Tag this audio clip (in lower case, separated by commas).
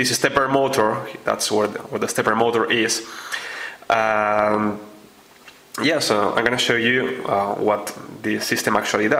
speech